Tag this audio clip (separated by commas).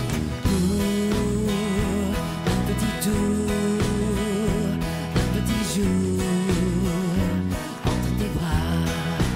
Music